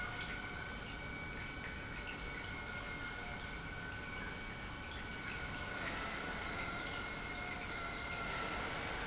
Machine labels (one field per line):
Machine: pump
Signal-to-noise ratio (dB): 0 dB